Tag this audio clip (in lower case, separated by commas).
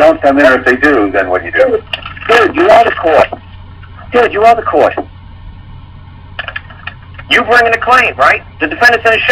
speech, dtmf